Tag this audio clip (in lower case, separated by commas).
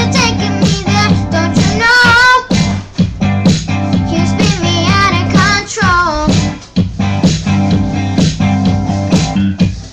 child singing, music